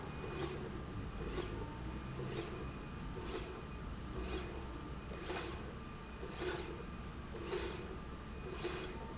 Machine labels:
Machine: slide rail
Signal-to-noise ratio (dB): 0 dB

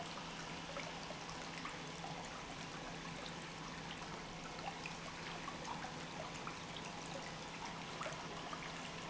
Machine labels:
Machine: pump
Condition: normal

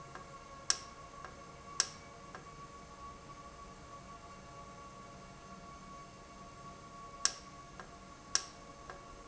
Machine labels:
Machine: valve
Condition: normal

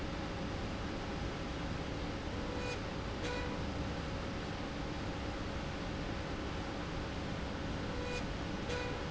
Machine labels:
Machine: slide rail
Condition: normal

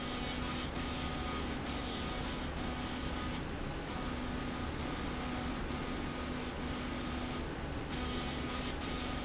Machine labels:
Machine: slide rail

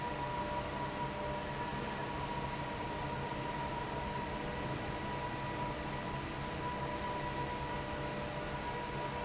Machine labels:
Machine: fan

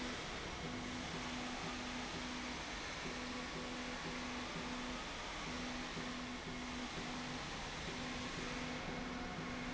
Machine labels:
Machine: slide rail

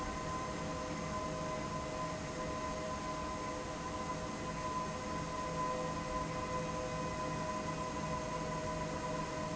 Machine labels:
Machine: fan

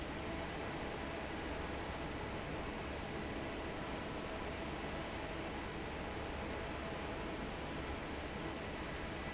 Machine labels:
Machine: fan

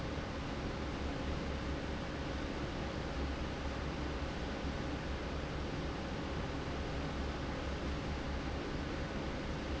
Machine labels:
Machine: fan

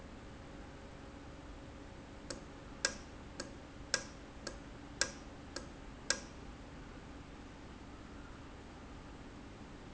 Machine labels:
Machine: valve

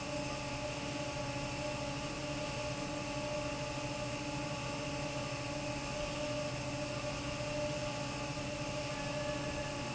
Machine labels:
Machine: fan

